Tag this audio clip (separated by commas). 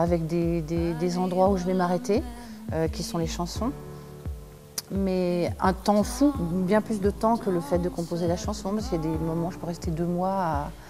Speech, Music